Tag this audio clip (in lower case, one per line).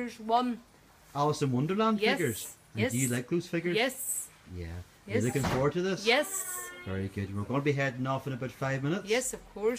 speech